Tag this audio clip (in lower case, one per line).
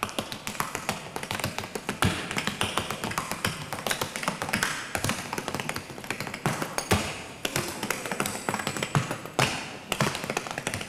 tap dancing